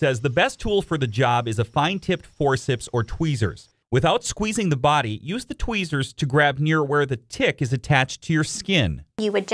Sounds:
speech

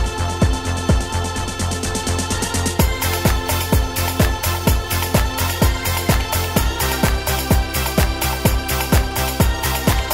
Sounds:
music

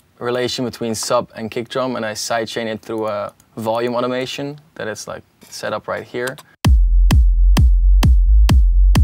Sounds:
music, speech

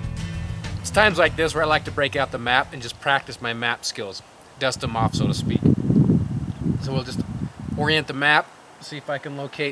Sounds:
outside, rural or natural, speech, music

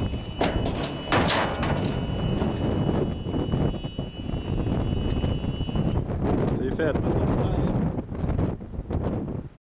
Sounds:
speech

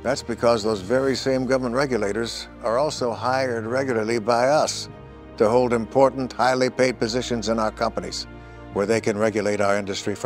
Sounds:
speech, music

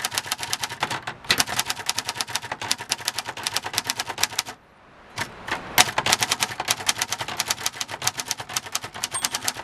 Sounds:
typing on typewriter

